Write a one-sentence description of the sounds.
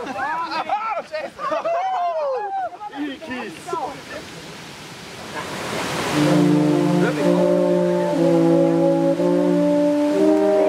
A group of young people enjoying themselves in the water before music starts to play